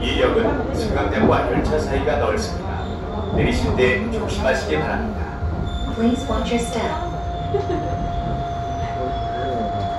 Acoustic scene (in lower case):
subway train